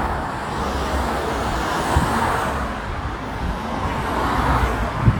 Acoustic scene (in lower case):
street